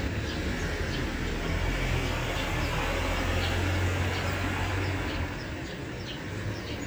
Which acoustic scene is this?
residential area